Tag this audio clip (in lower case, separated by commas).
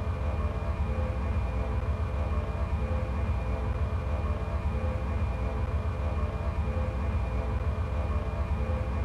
gunfire